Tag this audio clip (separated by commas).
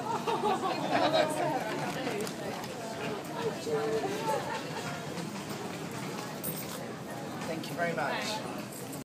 Speech